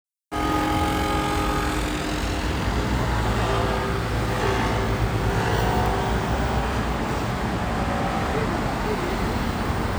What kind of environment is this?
street